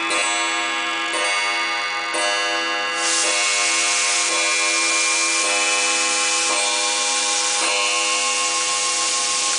A clock chimes non-stop as steam hisses